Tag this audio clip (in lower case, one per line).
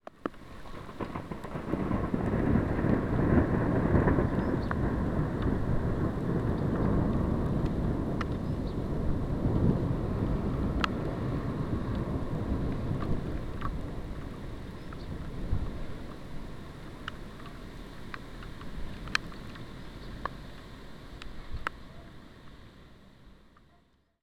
thunderstorm
thunder